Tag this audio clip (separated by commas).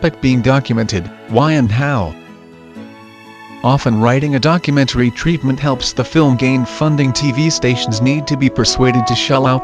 Speech, Music